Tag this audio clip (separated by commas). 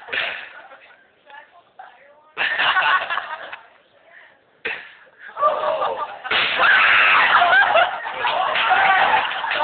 Explosion, pop, Speech